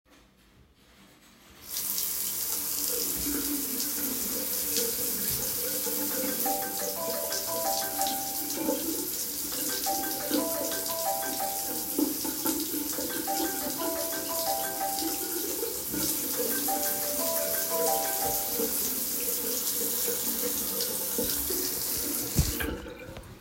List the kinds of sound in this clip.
running water, phone ringing